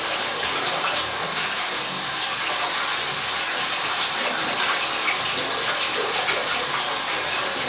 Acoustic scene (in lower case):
restroom